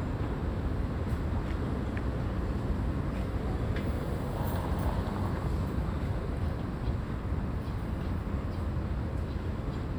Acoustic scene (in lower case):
residential area